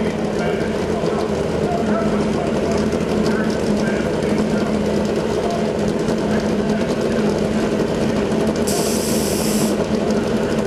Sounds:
Vehicle, Speech

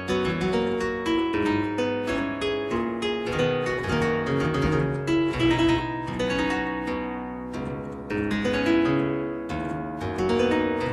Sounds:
Musical instrument, playing piano, Music, Piano, Keyboard (musical)

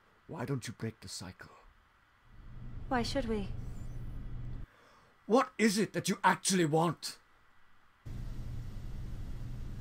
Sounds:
Female speech, Conversation, Male speech, Speech

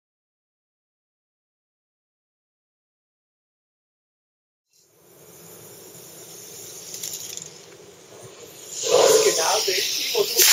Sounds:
Speech

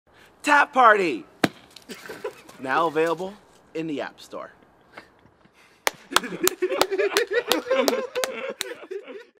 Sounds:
Speech

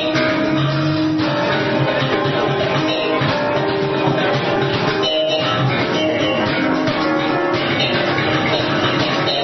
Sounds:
Musical instrument, Music, Bass guitar

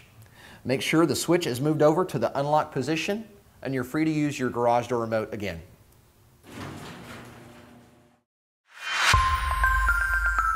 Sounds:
Music, Speech

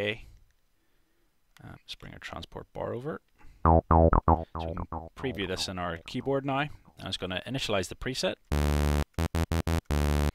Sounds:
Speech, Electronic music, Music

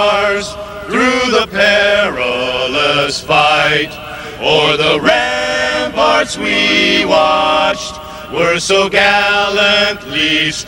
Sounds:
Male singing, Choir

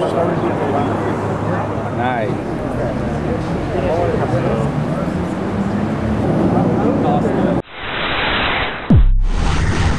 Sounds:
speech noise, outside, urban or man-made, Speech

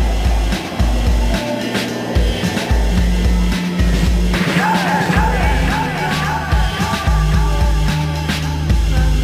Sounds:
Soundtrack music, Music, Exciting music

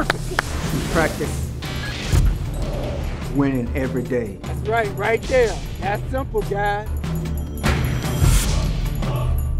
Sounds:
Music, Speech

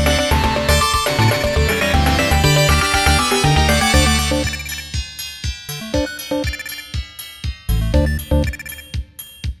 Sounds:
Theme music, Music

